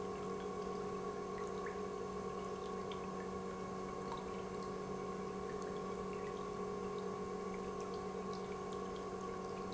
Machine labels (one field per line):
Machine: pump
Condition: normal